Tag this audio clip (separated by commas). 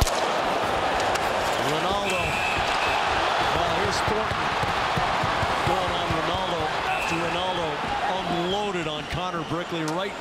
Speech, Basketball bounce